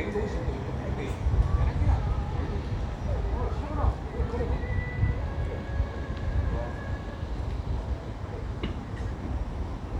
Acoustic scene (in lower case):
residential area